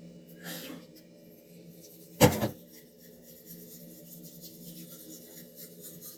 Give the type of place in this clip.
restroom